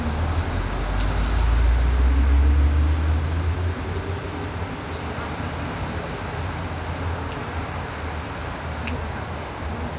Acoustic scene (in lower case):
street